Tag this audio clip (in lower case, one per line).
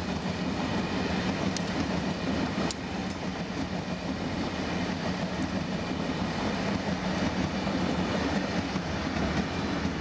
vehicle
train
rail transport
train wagon